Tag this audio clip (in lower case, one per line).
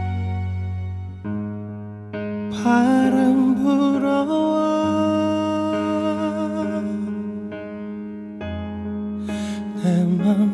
music